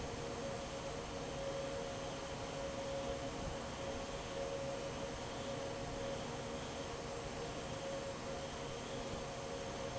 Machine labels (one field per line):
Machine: fan